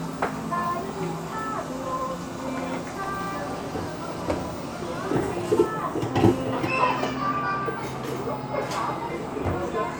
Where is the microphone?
in a cafe